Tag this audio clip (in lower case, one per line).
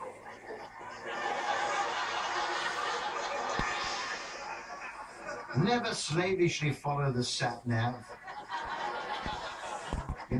speech